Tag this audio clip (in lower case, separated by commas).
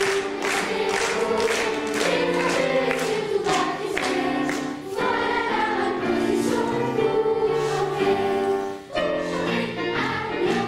music